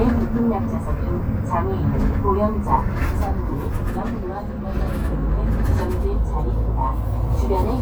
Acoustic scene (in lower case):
bus